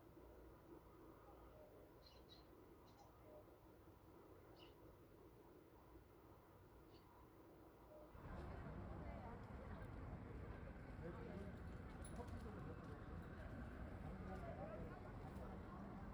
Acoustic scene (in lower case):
park